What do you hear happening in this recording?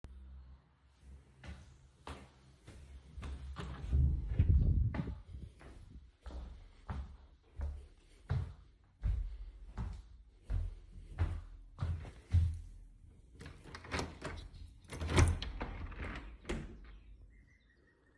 I went to the office and after noticing it was quite hot in the room, I decided to open up a window to cool down.